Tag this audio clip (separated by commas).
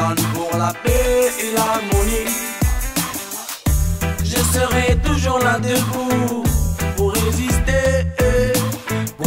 Music